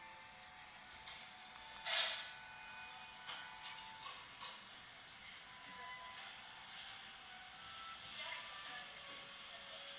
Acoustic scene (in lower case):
cafe